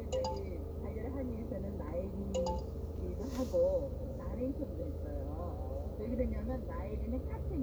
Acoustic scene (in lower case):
car